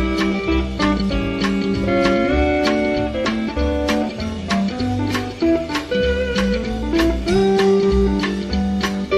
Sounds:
flamenco, music

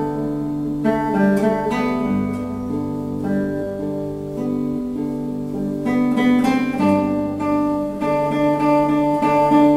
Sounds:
musical instrument, guitar, music, acoustic guitar, plucked string instrument

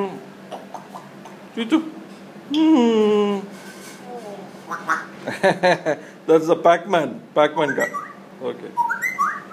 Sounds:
speech

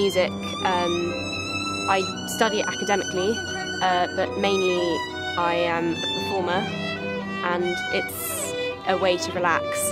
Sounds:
music, speech, tender music

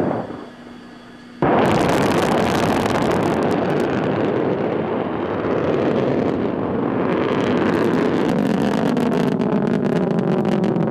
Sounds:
missile launch

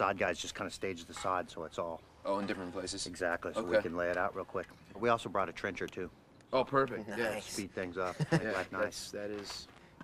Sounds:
outside, rural or natural, speech

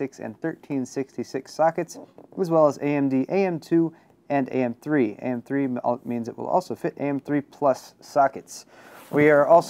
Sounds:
speech

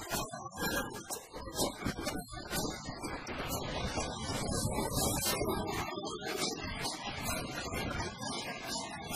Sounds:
music

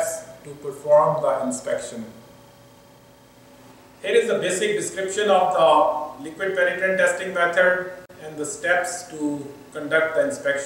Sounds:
speech

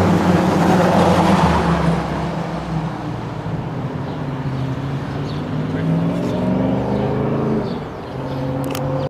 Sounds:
vehicle, medium engine (mid frequency), car, accelerating

